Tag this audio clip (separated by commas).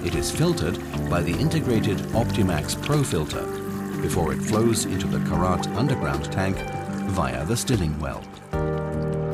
Speech, Music